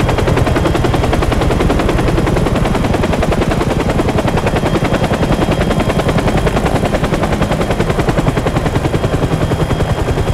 A loud helicopter